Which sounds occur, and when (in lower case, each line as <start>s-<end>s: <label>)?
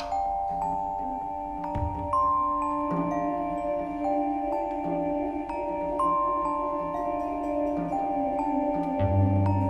0.0s-9.6s: music